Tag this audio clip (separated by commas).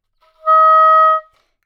Music, Musical instrument, Wind instrument